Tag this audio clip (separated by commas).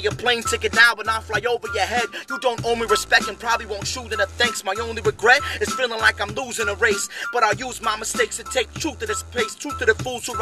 Speech, Music